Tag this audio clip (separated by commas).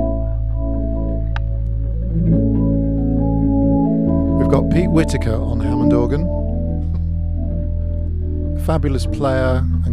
Music, Speech, Musical instrument, Electronic organ